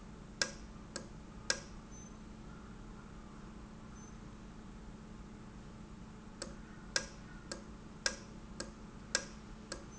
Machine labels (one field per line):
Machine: valve